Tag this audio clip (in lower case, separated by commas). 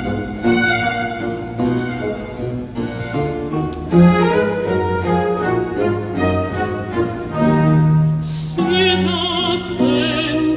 orchestra, string section